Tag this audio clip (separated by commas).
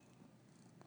Purr, Domestic animals, Cat, Animal